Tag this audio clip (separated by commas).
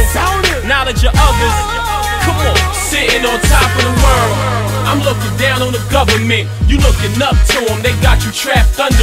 Hip hop music, Music